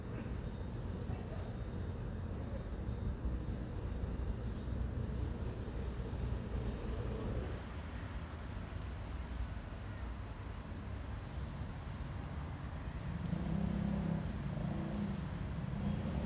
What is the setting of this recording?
residential area